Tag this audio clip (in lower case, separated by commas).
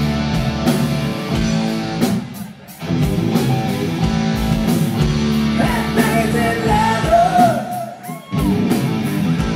music, heavy metal